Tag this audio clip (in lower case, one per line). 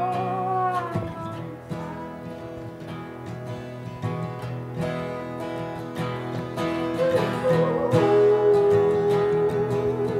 music
bluegrass